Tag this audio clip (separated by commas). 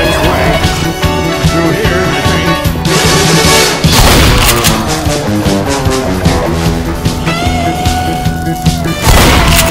Music